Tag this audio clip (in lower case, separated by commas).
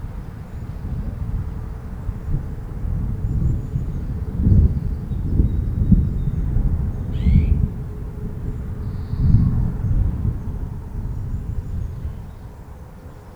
thunderstorm, thunder